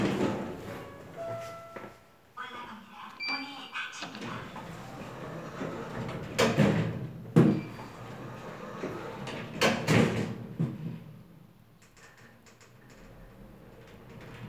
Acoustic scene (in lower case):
elevator